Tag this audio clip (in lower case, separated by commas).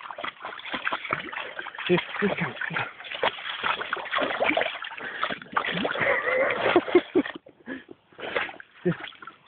speech